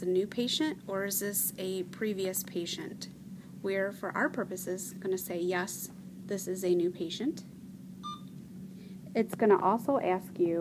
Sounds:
speech

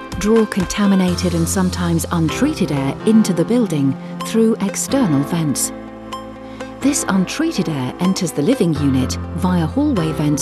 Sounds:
speech, music

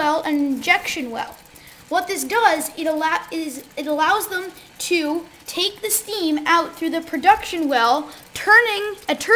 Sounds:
speech

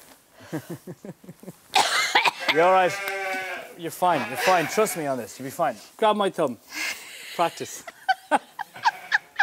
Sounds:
livestock, moo, cattle

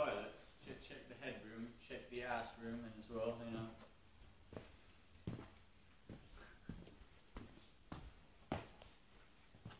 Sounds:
speech

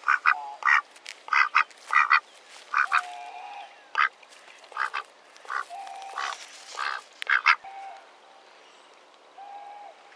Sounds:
duck, quack, duck quacking

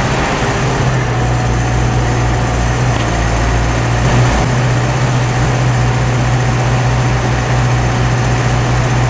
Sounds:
accelerating, vehicle

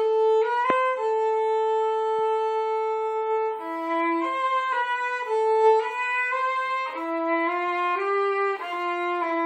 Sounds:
violin, music, musical instrument

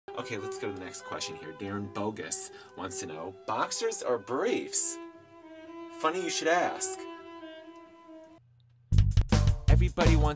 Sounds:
speech, cello, music

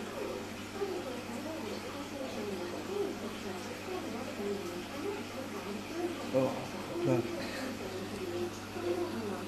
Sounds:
speech

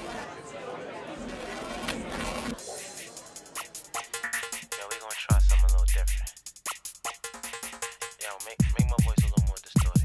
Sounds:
sampler

